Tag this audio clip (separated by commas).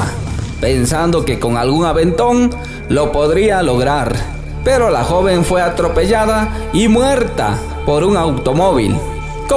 Speech, Music